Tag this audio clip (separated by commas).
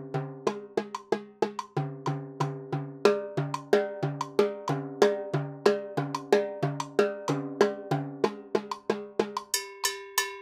playing timbales